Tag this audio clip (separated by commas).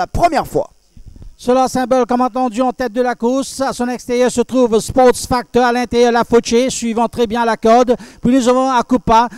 Speech